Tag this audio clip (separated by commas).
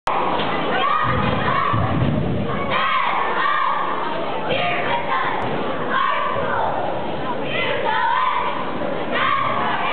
people cheering, Cheering